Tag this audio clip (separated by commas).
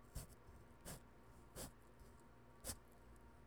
Domestic sounds